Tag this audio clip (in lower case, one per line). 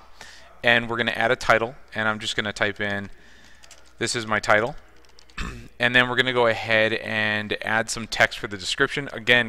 speech